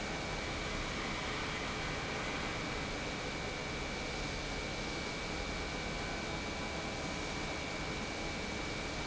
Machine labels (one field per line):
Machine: pump